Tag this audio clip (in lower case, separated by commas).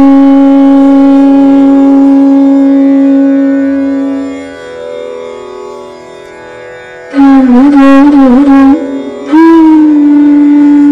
bowed string instrument, music